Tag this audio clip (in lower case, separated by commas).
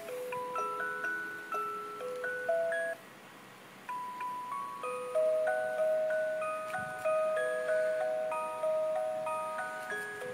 music